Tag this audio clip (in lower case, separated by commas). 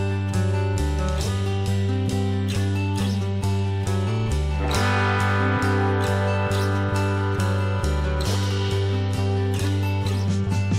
music